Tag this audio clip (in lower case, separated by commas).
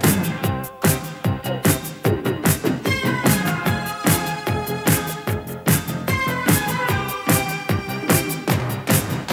music, funk